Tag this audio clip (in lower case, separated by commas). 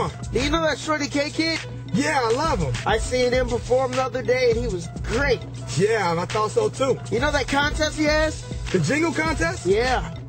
music, speech